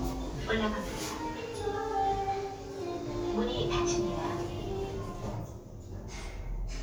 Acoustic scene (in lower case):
elevator